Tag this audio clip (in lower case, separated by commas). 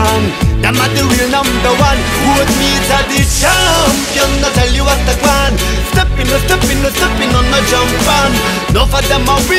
music